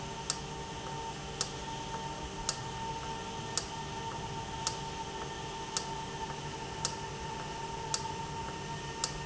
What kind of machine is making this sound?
valve